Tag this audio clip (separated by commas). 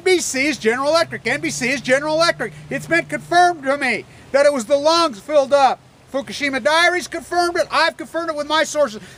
Speech